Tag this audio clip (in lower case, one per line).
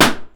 explosion